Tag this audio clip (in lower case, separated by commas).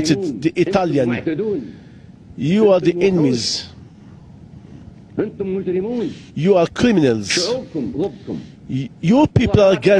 male speech, conversation, speech